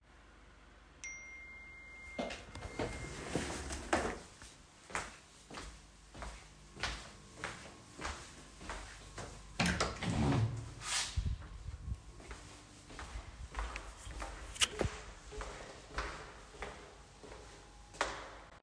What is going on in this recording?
I am working on my laptop when I get notification that my takeaway food is downstairs so I stand from my chair, open the door and walk to the elevator